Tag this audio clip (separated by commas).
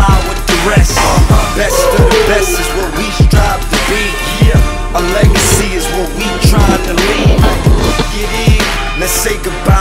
Music